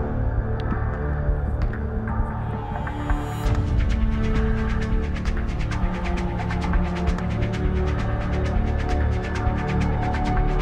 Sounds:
Music

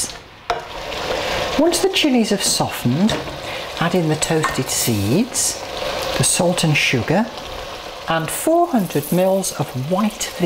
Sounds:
Speech, inside a small room

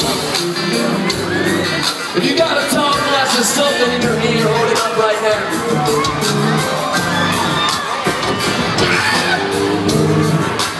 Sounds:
Music, Speech

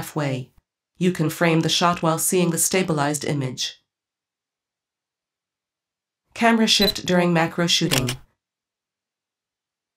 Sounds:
Camera, Speech

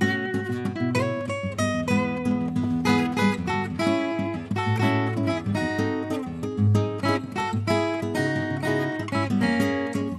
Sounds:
Acoustic guitar, Music, Musical instrument, Strum, Plucked string instrument

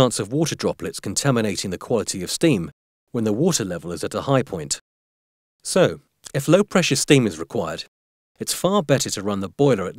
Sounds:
Speech

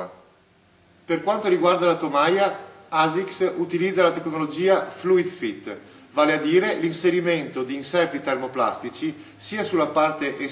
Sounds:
Speech

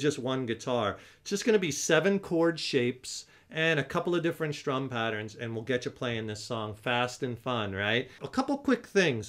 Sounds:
Speech

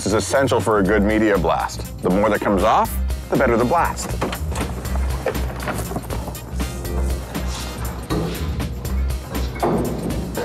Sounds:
Speech, Music

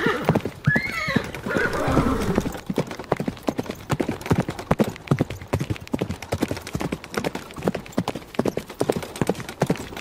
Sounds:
horse neighing

